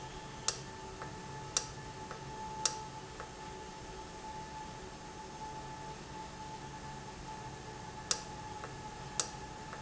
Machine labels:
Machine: valve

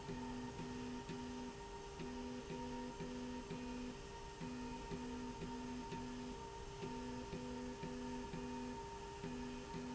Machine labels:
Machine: slide rail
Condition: normal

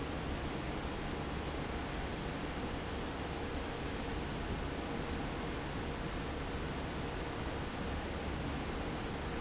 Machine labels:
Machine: fan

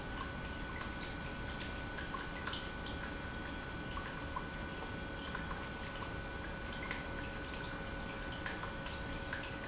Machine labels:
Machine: pump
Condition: normal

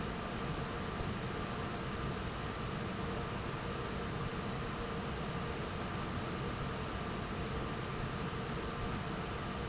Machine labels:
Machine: fan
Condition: normal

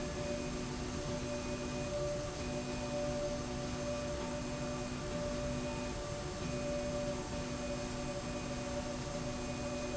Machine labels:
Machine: slide rail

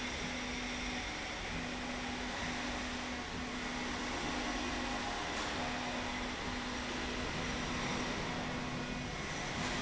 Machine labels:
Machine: slide rail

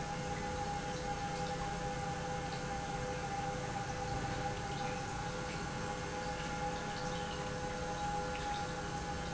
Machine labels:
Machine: pump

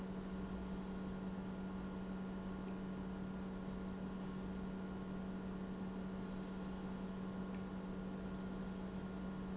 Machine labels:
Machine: pump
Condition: normal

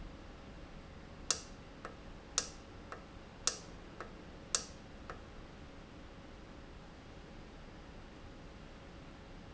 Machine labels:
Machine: valve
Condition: normal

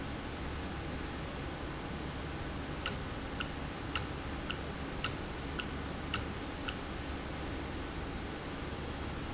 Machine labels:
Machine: valve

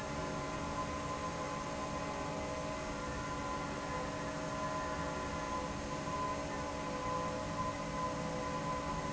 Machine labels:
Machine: fan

